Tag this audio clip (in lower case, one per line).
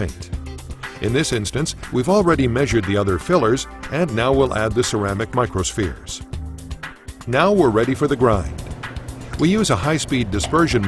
speech
music